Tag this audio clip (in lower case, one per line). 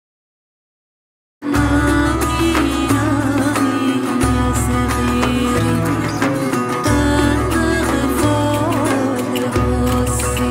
music